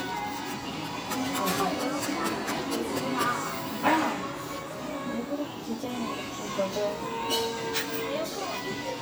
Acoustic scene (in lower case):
cafe